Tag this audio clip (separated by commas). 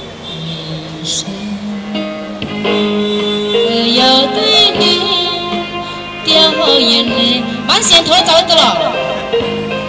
Music, Speech